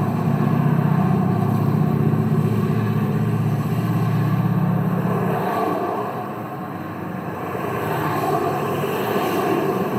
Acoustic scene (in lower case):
street